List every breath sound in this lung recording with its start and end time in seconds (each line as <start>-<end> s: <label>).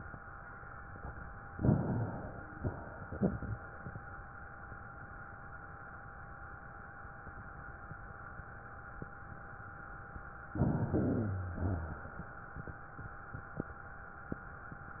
1.52-2.52 s: inhalation
2.53-4.14 s: exhalation
10.51-11.54 s: inhalation
11.18-12.12 s: wheeze
11.54-12.92 s: exhalation